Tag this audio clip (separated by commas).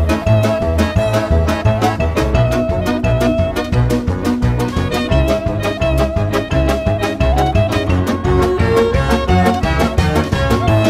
Music